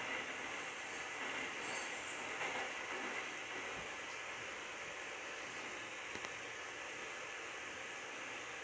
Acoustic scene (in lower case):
subway train